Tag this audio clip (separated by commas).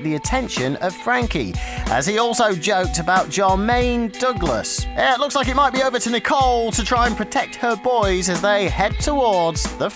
Music, Speech